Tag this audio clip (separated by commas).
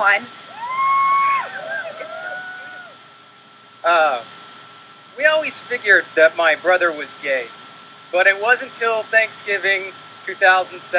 man speaking, monologue, woman speaking, Speech